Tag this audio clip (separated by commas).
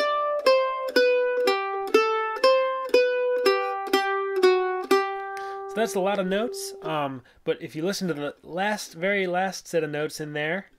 playing mandolin